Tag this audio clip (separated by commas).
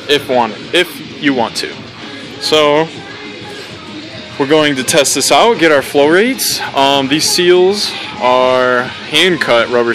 Speech, Music